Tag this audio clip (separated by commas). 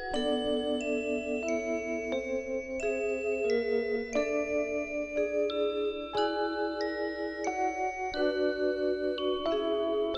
Organ, Musical instrument, Keyboard (musical), Music